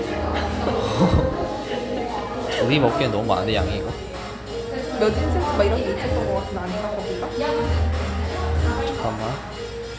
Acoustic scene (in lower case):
cafe